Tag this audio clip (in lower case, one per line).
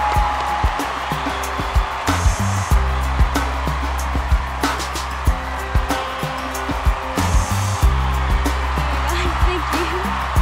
rapping